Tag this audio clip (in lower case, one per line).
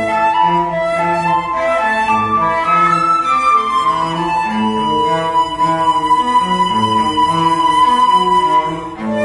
cello
flute
music
bowed string instrument
musical instrument